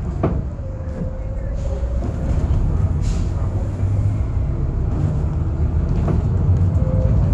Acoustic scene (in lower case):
bus